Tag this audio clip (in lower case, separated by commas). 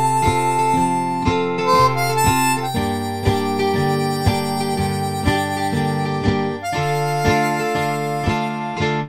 harmonica, woodwind instrument